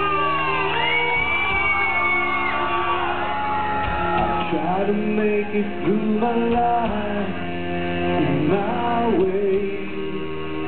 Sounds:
inside a large room or hall, shout, music, singing

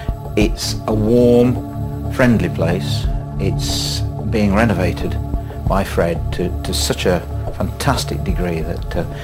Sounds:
speech, music

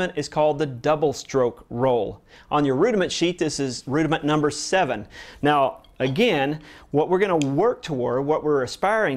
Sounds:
speech

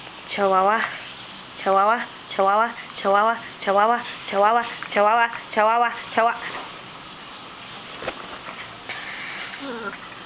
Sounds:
pets, speech, dog, animal

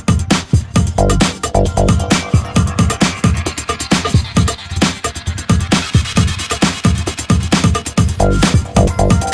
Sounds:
music

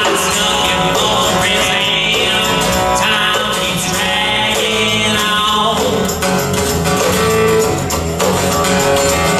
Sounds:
blues, music

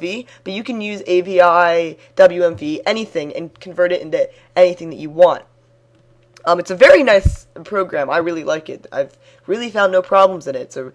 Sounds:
speech

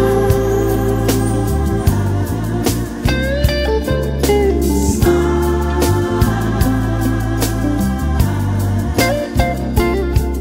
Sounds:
soul music

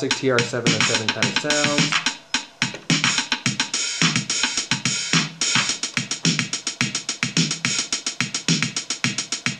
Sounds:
speech, music

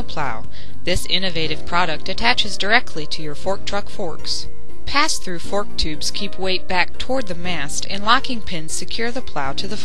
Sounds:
speech, music

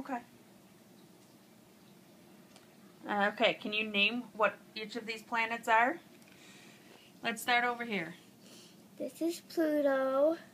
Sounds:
inside a small room, speech

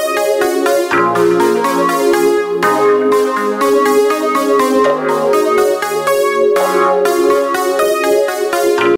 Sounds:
music

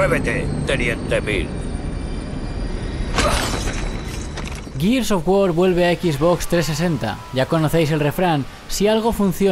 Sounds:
speech

